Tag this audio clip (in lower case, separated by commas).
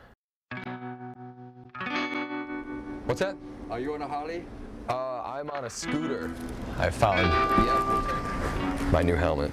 music, speech, distortion, inside a public space